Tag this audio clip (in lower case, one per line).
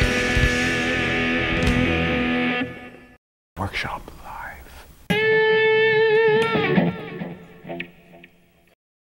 speech
strum
musical instrument
plucked string instrument
guitar
electric guitar
music